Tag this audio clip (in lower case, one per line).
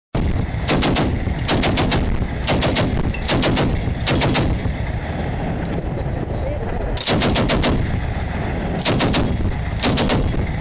machine gun
speech